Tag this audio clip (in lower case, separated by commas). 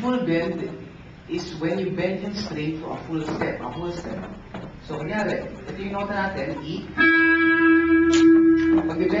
plucked string instrument, musical instrument, music, speech, guitar